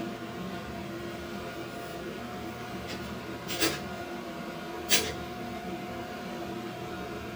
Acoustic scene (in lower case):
kitchen